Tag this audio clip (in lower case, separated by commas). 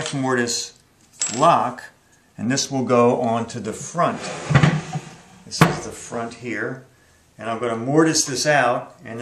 inside a small room, tools, speech